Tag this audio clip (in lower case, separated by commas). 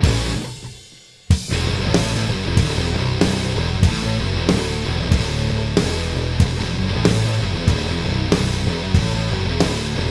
guitar, music